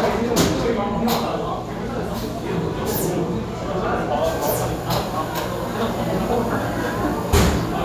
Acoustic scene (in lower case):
restaurant